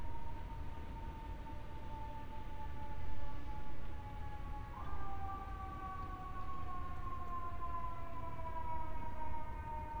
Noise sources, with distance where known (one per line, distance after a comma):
siren, far